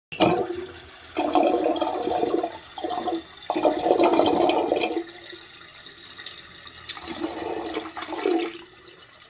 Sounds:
sink (filling or washing)

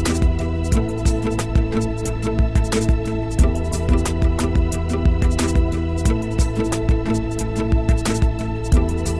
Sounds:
music

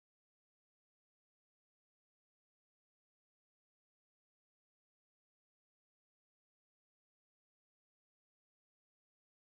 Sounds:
music

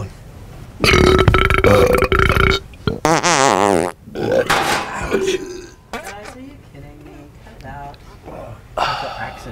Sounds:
people farting

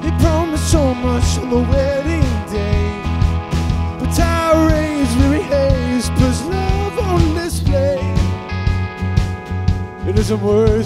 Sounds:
music

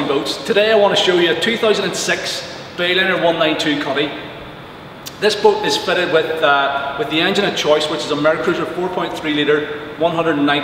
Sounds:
speech

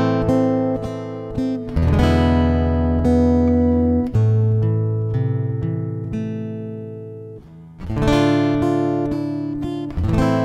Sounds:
guitar
strum
music
musical instrument

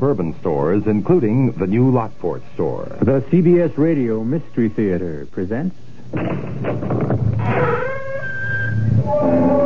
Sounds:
speech

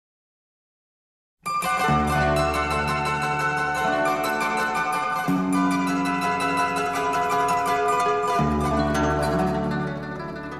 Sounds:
playing zither

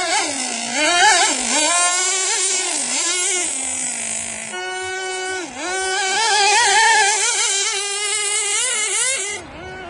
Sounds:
car

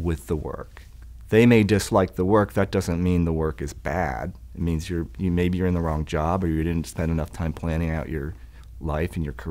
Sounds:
speech

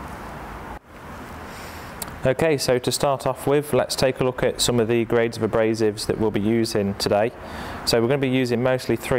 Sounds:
speech

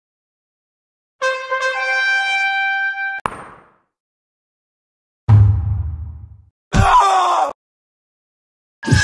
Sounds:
music
knock

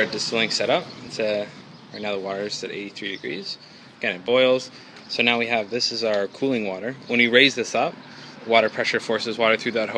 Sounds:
speech

